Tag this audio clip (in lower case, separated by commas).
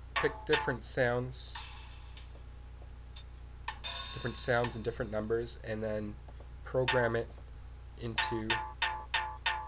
speech, drum machine, musical instrument, music